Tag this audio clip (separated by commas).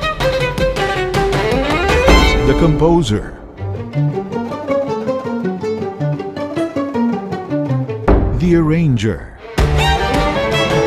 Pizzicato, Bowed string instrument, fiddle